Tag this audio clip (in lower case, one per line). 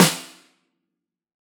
percussion
music
snare drum
drum
musical instrument